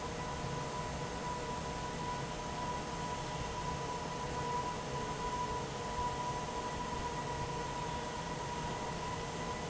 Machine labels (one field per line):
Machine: fan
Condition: normal